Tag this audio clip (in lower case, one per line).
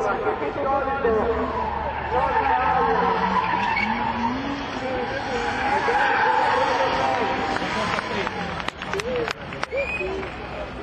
auto racing
vehicle
skidding
speech